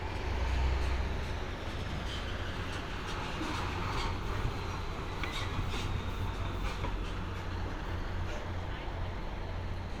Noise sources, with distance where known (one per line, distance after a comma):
large-sounding engine, near